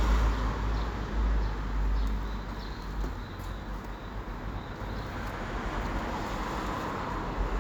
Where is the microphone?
on a street